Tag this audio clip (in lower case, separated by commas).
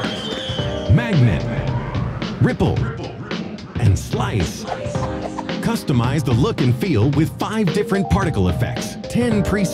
speech, music